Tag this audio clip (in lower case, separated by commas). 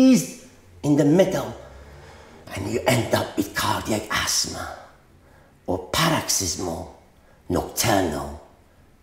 inside a small room, speech